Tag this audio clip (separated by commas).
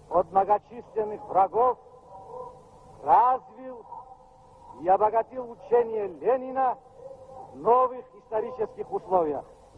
man speaking, Speech